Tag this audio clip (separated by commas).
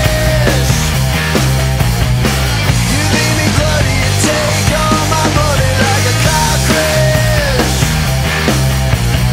Music